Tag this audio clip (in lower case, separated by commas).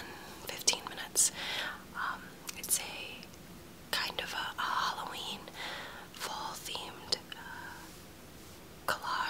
whispering, speech, people whispering